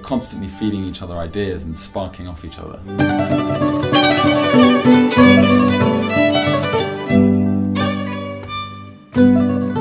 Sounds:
musical instrument, speech, violin, music

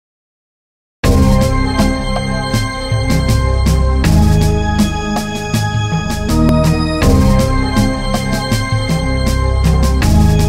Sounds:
music, soundtrack music

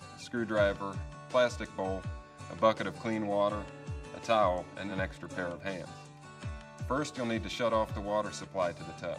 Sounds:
speech, music

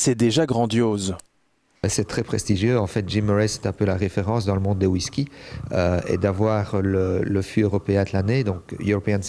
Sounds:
speech

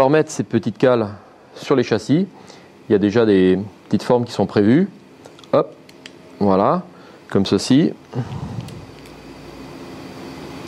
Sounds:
speech

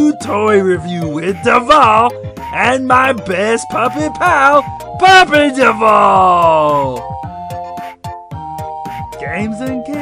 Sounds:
speech, music for children, music

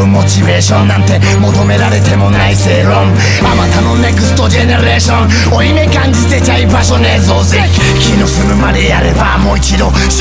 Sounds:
music, progressive rock, grunge

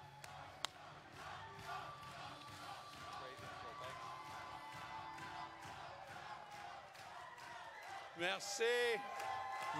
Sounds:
male speech, speech

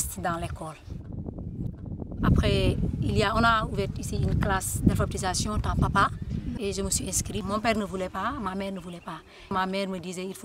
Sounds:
speech

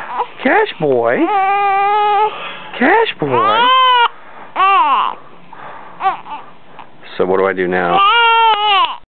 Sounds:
speech, whimper, infant cry

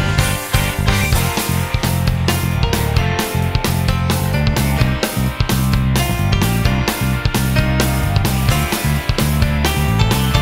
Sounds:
background music, music

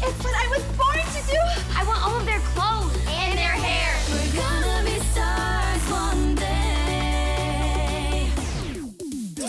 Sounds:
music, speech, female singing

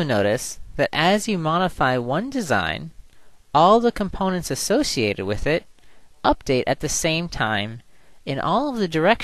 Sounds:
speech

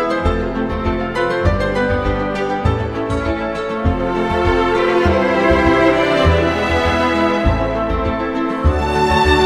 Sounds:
music, theme music

